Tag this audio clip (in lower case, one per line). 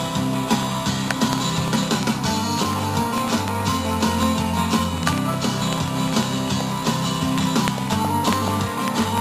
rhythm and blues
music